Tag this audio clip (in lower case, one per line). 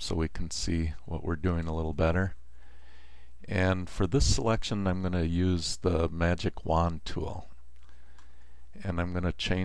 speech